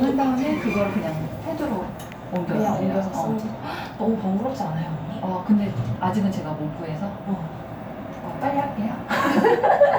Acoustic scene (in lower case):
elevator